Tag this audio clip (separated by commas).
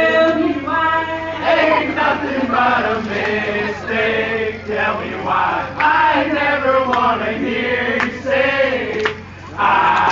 Speech